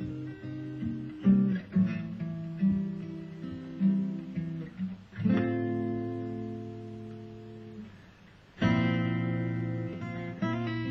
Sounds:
music
plucked string instrument
guitar
musical instrument

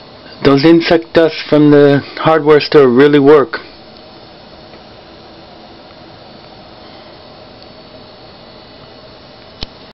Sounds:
speech

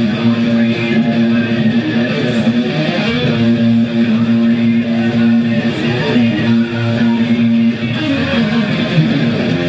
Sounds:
guitar
electric guitar
music
musical instrument

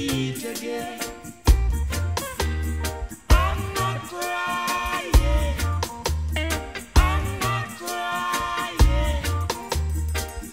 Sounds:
music

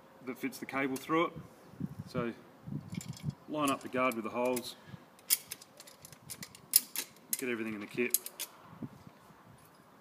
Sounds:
speech

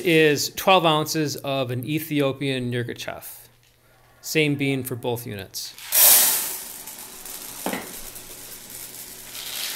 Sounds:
speech

